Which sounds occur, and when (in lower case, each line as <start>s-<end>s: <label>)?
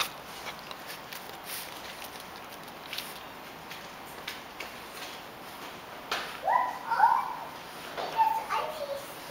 0.0s-3.2s: chewing
0.0s-9.3s: mechanisms
3.6s-3.8s: generic impact sounds
4.2s-4.3s: generic impact sounds
4.5s-4.7s: generic impact sounds
4.9s-5.1s: generic impact sounds
5.5s-5.7s: generic impact sounds
6.1s-6.3s: generic impact sounds
6.4s-7.5s: child speech
7.9s-8.2s: generic impact sounds
8.1s-9.1s: child speech
9.3s-9.3s: child speech